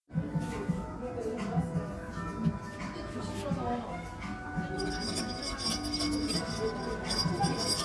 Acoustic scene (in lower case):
cafe